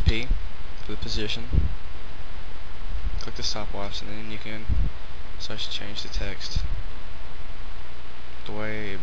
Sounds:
speech

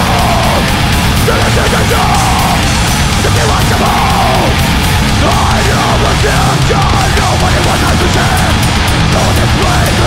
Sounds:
music

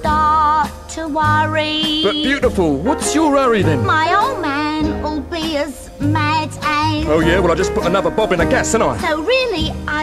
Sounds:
speech, music

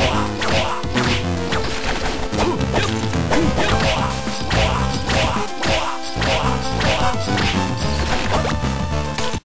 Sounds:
music

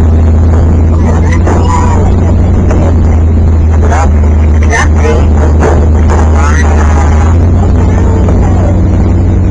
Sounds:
car, vehicle, speech

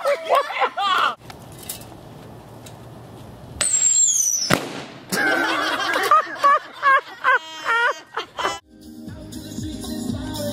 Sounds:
firecracker, music

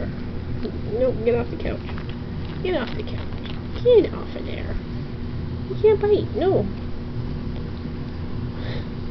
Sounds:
inside a small room, speech

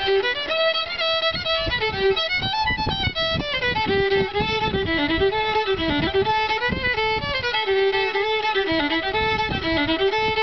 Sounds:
music, musical instrument, violin

